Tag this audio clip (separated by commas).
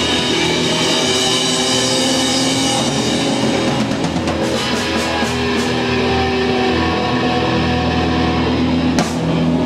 Music